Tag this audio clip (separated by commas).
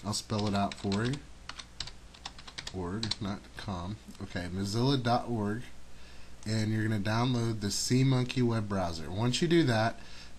Speech